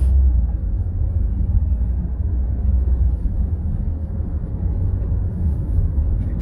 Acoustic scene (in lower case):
car